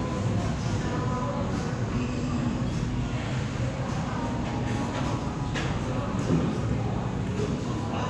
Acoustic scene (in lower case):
cafe